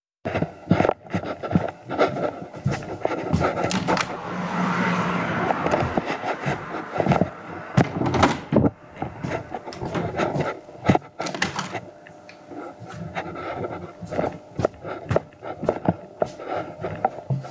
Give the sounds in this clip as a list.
footsteps, window, door